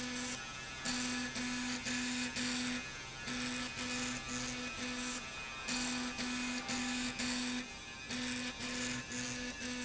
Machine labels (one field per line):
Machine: slide rail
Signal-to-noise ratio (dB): 0 dB